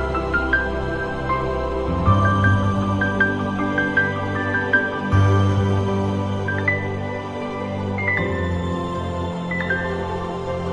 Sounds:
music, new-age music

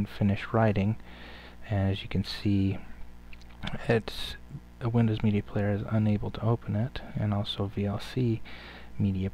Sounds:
speech

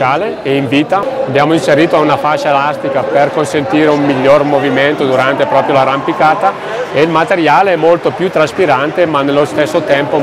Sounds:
speech

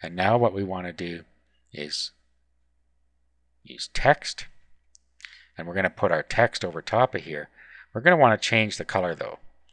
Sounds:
speech

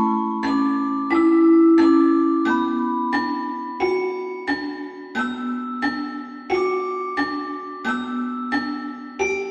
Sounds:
music, lullaby

